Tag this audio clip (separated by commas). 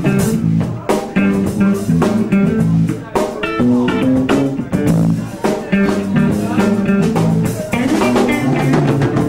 Speech, Music